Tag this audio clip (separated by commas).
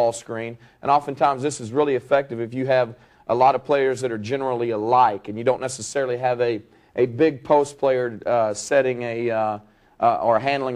Speech